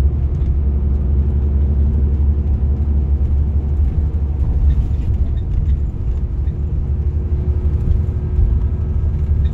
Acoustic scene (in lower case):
car